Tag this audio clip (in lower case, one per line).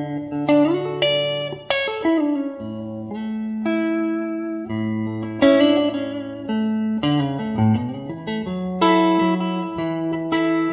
musical instrument
music
inside a small room
plucked string instrument
guitar